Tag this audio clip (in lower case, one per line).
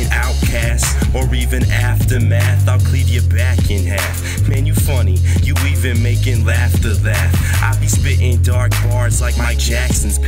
music